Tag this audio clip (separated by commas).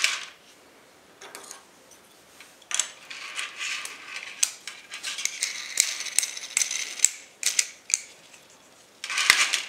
inside a small room